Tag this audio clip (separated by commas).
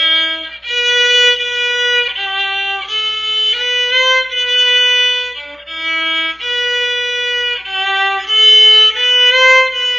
Violin, Musical instrument, Music